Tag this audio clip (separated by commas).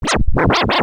Scratching (performance technique), Musical instrument, Music